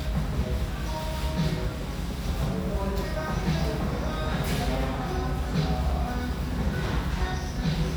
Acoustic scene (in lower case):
restaurant